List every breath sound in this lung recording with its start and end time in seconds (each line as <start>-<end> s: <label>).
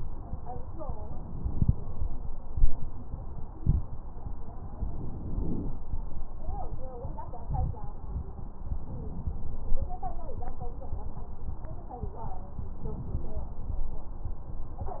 4.64-5.78 s: inhalation
8.70-9.84 s: inhalation
12.73-13.86 s: inhalation